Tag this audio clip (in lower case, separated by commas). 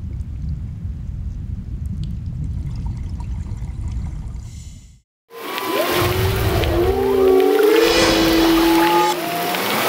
whale vocalization